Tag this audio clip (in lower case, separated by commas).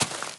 walk